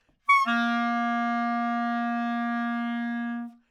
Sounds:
Musical instrument, Music, Wind instrument

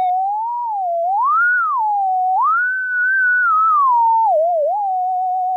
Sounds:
Music, Musical instrument

